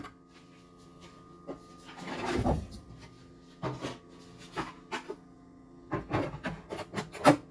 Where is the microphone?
in a kitchen